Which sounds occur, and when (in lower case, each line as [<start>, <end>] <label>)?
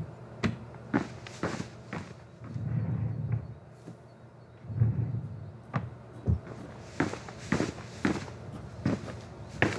[0.00, 9.75] mechanisms
[4.54, 5.83] drawer open or close
[6.10, 6.39] chirp